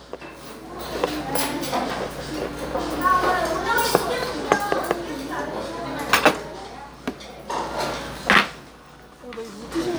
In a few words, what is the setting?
restaurant